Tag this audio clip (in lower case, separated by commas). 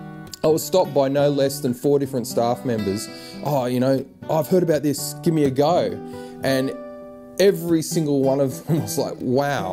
acoustic guitar, musical instrument, guitar, music, strum, speech, plucked string instrument